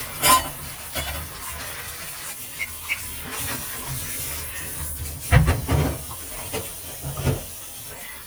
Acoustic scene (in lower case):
kitchen